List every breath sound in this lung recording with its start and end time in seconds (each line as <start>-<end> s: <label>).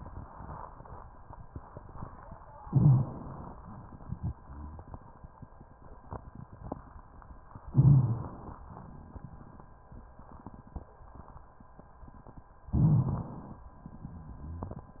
2.67-3.57 s: inhalation
3.57-5.43 s: exhalation
7.73-8.62 s: inhalation
7.73-8.62 s: crackles
12.72-13.62 s: inhalation
12.72-13.62 s: crackles